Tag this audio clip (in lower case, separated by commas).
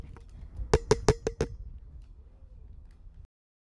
tap